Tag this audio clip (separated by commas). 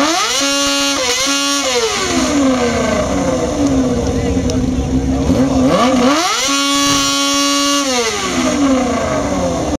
Sound effect